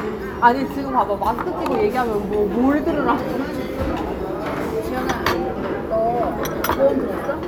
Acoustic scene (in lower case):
crowded indoor space